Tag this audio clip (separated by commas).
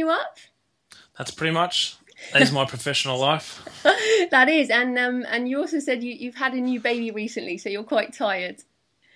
Speech